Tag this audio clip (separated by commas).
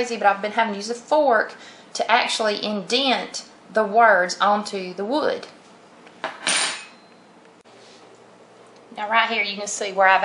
silverware, dishes, pots and pans